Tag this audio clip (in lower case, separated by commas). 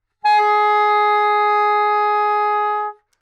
woodwind instrument, music, musical instrument